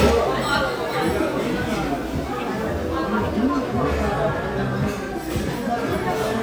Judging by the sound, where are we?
in a restaurant